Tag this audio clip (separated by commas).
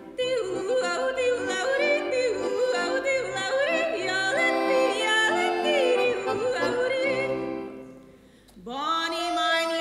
yodelling